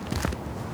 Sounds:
footsteps

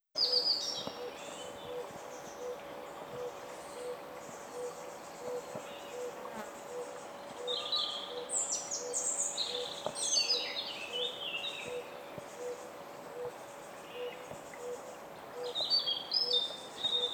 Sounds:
Animal, Wild animals, Insect

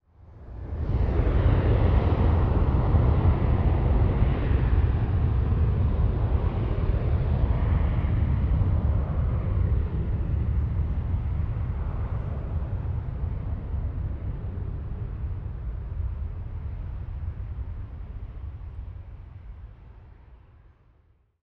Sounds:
Vehicle, Aircraft

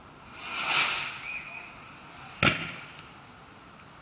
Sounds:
Explosion, Fireworks

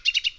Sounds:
bird call, Bird, Wild animals, Animal

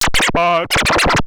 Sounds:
Musical instrument, Scratching (performance technique), Music

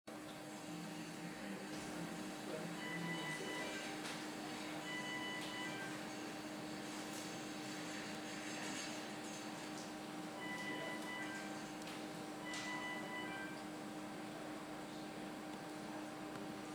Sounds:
Alarm

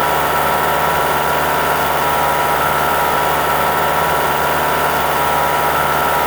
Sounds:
Vehicle, Engine, Motor vehicle (road)

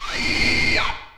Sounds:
Mechanisms

